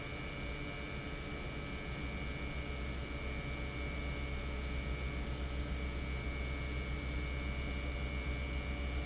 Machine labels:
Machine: pump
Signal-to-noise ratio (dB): -6 dB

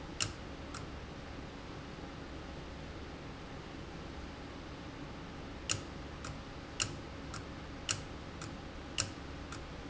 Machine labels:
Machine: valve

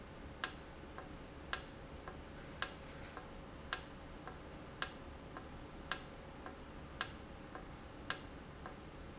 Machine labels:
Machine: valve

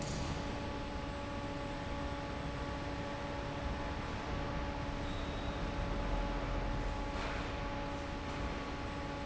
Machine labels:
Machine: fan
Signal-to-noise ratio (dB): -6 dB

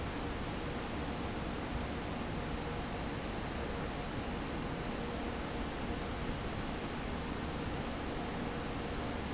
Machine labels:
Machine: fan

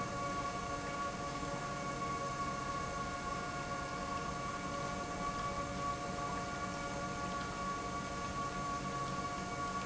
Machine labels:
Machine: pump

